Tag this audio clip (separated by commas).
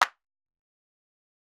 Hands, Clapping